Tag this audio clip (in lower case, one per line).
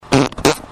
fart